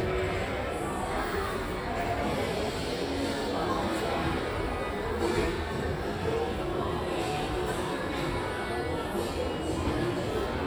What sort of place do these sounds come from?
crowded indoor space